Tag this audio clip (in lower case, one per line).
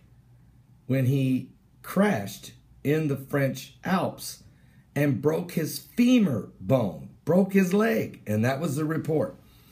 speech